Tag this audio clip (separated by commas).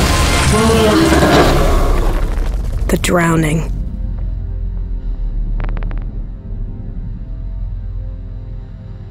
Speech, Music, Rumble